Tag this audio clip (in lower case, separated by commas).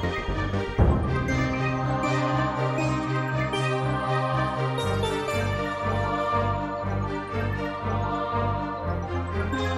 music